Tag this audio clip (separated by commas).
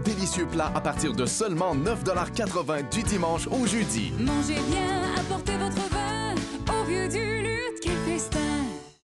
Music, Speech